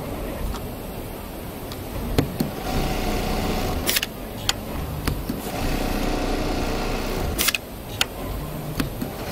A sewing machine is being used to do quick lines across